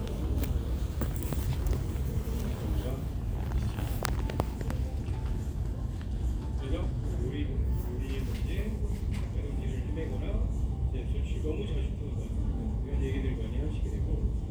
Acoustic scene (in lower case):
crowded indoor space